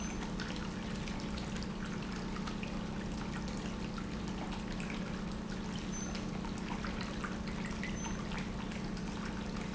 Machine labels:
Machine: pump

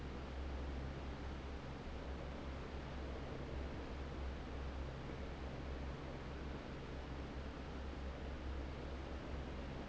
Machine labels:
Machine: fan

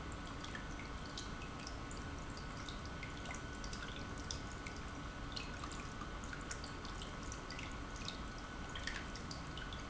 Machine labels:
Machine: pump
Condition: normal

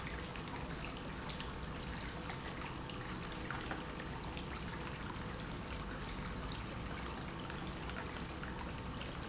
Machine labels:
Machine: pump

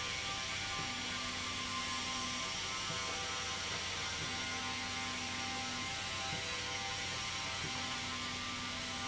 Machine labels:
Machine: slide rail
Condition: normal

